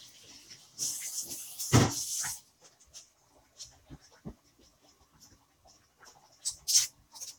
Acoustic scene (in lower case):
kitchen